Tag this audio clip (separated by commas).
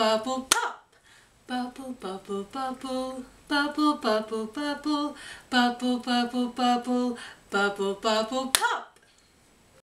Female singing